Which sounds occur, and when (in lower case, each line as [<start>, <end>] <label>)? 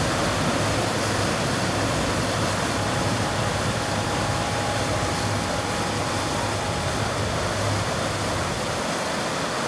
[0.00, 9.65] mechanisms
[0.00, 9.65] water